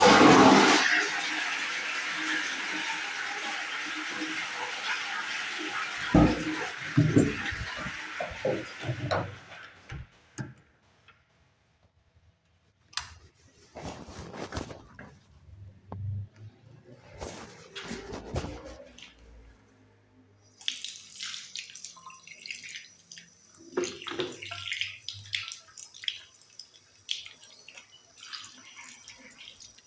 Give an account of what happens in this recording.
I flushed the toilet, opened the door and got out. Then I turned off the light, went to the bathroom, turned on the tap, pumped soap from the dispenser and washed my hands.